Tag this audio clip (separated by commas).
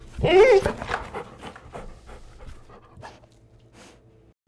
Dog, Animal, Domestic animals